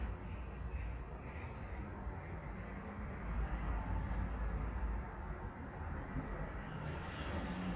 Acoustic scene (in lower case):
residential area